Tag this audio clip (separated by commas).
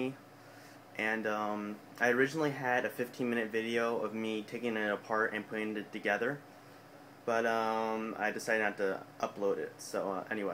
Speech